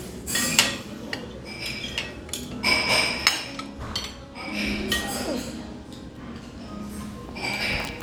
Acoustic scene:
restaurant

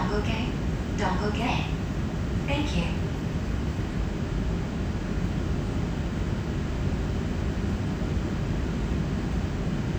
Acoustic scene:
subway train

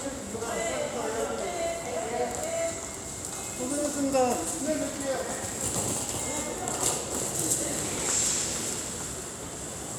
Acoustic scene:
subway station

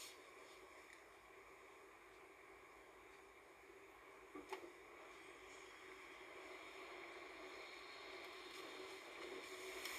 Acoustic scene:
car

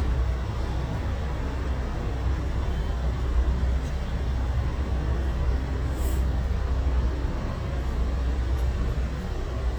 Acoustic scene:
street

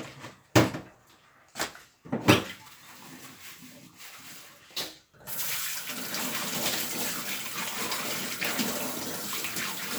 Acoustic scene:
kitchen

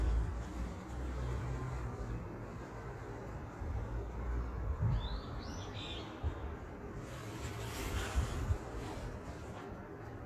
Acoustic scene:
park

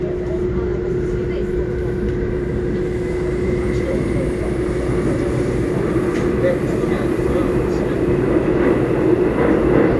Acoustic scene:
subway train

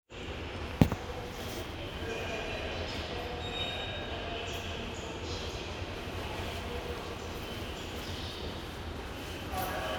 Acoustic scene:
subway station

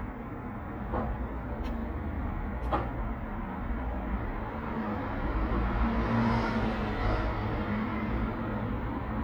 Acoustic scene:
residential area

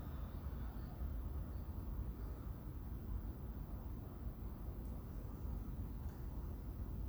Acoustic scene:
residential area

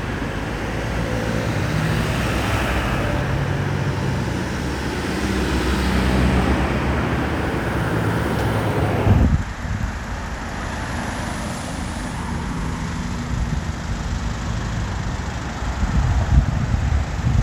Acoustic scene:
street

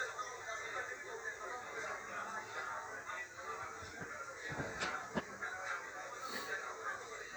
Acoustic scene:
restaurant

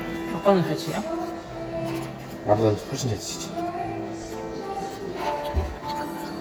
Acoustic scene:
cafe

